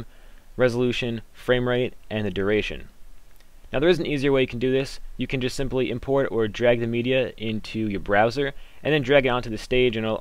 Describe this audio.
A man speaking